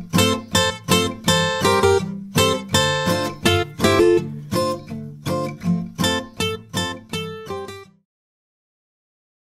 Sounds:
music

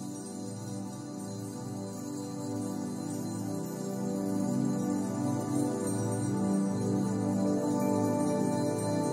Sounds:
soundtrack music
music

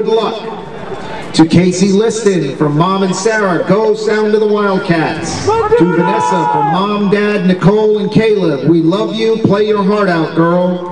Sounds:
speech

